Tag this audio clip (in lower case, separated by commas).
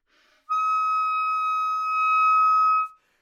woodwind instrument, music, musical instrument